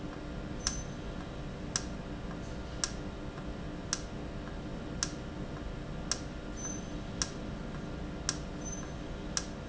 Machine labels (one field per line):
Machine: valve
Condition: normal